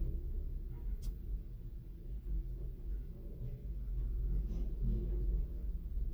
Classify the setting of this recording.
elevator